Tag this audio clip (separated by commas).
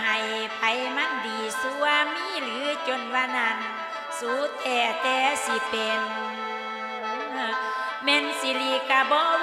Soundtrack music, Traditional music, Music